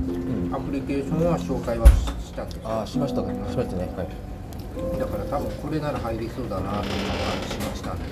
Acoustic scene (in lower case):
restaurant